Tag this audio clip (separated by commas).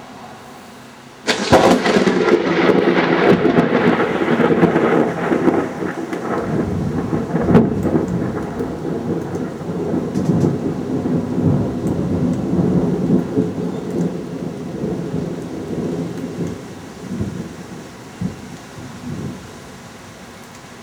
Thunderstorm, Thunder